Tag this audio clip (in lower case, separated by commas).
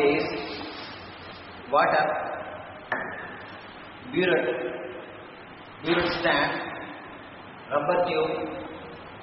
speech